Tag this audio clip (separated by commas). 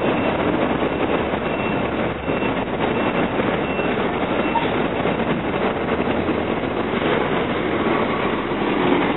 Bus, Vehicle